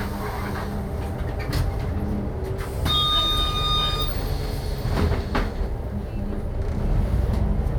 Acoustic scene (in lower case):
bus